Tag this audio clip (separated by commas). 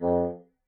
Wind instrument, Music, Musical instrument